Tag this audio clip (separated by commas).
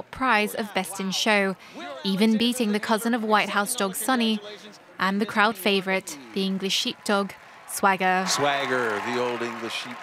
Speech